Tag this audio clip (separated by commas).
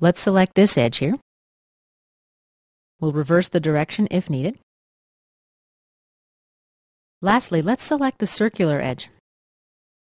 Speech